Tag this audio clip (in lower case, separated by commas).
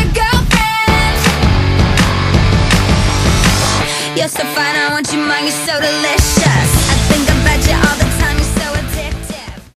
music